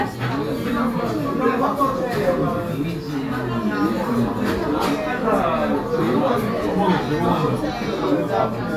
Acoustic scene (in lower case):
restaurant